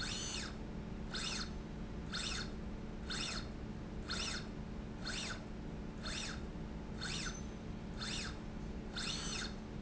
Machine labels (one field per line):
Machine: slide rail